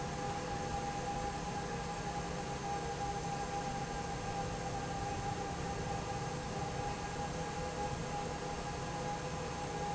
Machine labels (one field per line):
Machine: fan